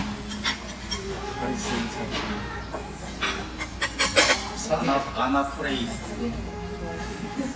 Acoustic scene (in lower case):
restaurant